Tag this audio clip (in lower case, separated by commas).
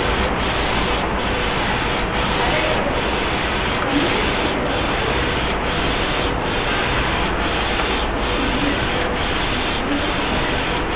speech, printer, printer printing